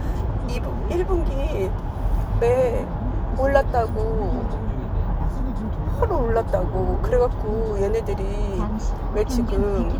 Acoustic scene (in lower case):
car